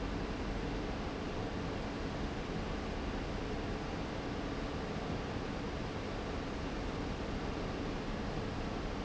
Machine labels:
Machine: fan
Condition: abnormal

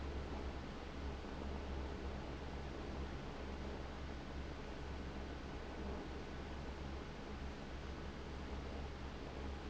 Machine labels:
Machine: fan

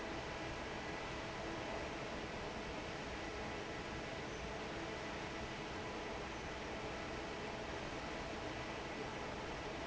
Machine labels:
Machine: fan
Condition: normal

